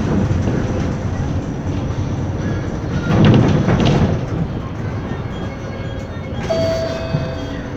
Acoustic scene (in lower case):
bus